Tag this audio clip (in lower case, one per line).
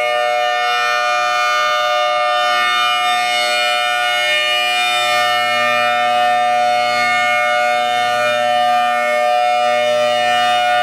siren
civil defense siren